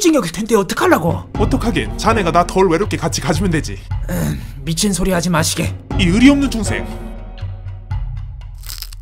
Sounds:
reversing beeps

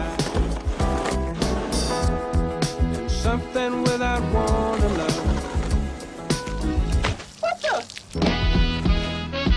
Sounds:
music

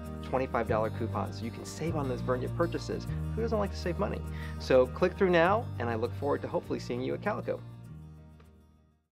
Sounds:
music
speech

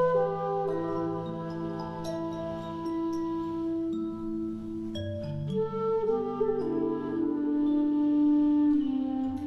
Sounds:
music

